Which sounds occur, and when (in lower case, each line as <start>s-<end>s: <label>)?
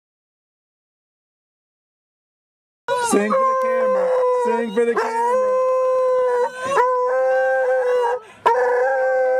2.9s-3.1s: human sounds
2.9s-9.3s: background noise
3.1s-4.1s: male speech
3.3s-8.2s: howl
4.0s-4.8s: human sounds
4.5s-5.6s: male speech
5.3s-8.2s: human sounds
8.2s-8.5s: breathing
8.5s-9.3s: howl